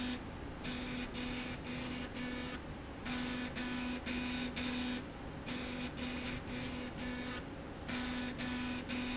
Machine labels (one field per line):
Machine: slide rail